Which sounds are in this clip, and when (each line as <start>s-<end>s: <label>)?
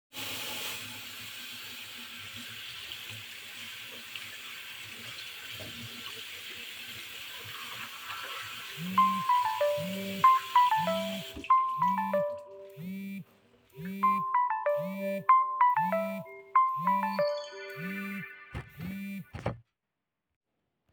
0.0s-11.4s: running water
8.9s-13.1s: phone ringing
13.8s-18.9s: phone ringing